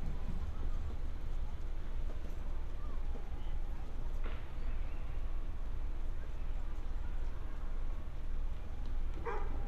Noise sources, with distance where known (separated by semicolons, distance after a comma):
person or small group talking, far; dog barking or whining, near